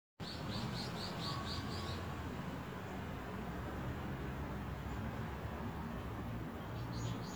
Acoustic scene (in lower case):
residential area